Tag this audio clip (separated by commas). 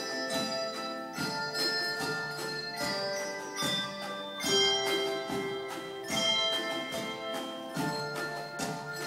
Jingle bell, Music